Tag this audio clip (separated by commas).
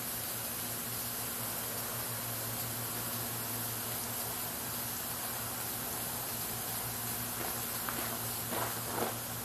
Hiss, Steam